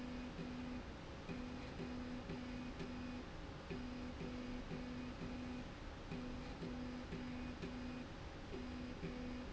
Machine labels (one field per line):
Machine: slide rail